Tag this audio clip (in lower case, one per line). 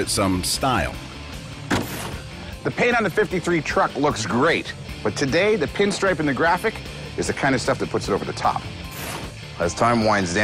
speech
music